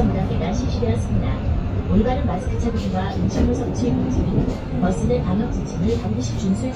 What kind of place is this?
bus